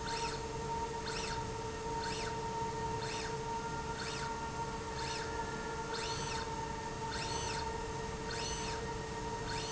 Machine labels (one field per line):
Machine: slide rail